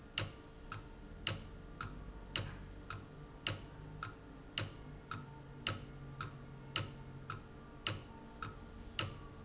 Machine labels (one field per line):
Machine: valve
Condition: abnormal